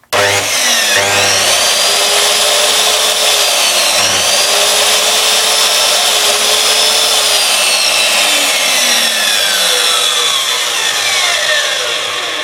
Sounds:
Sawing, Tools

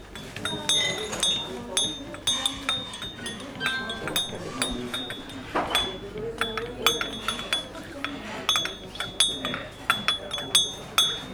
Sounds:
Chink, Glass

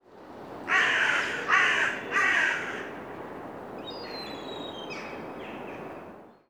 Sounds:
Wild animals, Bird, Animal

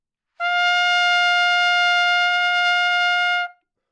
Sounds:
Brass instrument, Trumpet, Music, Musical instrument

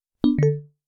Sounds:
Alarm, Telephone

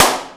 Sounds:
Clapping, Hands

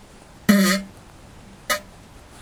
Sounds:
Fart

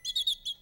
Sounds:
Wild animals, Bird, Chirp, Animal, bird call

